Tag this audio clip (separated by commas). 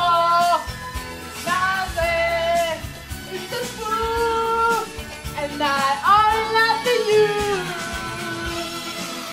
Music